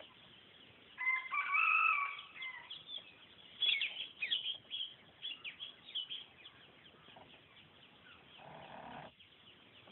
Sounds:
chicken, bird song, outside, rural or natural, chirp, livestock

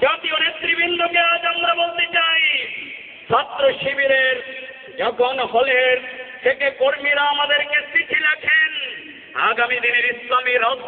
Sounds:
man speaking, speech

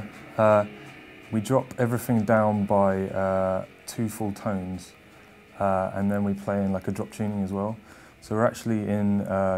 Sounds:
speech, music

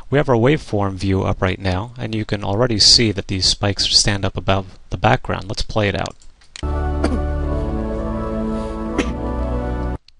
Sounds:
music, speech

